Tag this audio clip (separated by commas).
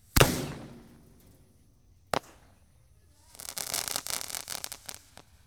Explosion, Crackle, Fireworks